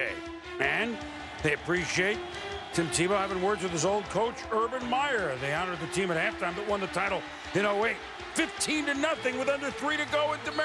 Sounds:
music
speech
man speaking

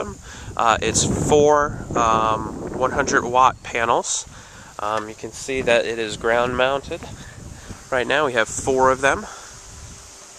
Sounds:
wind
wind noise (microphone)

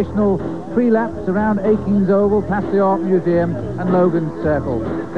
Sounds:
speech
music

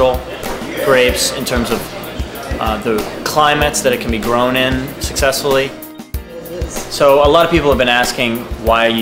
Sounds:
speech
music

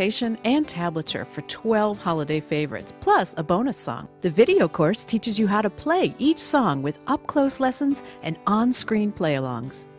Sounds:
strum
musical instrument
guitar
music
speech
plucked string instrument

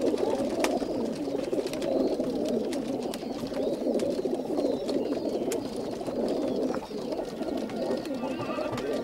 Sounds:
pigeon
music
bird

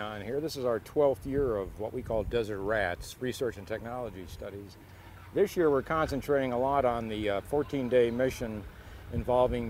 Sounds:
speech

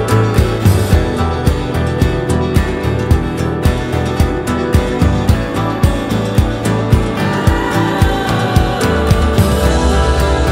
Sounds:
music

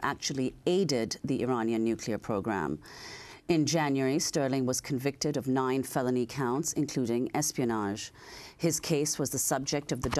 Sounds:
speech

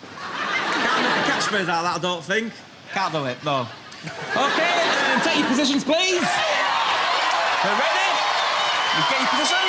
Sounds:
speech

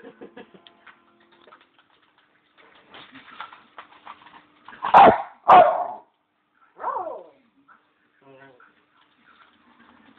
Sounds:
music
animal
dog
yip
bark
pets
speech

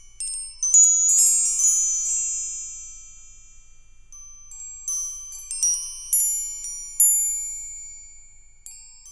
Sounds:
chime
wind chime

